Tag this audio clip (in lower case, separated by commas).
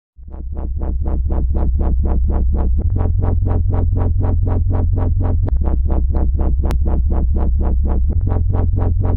dubstep, electronic music, music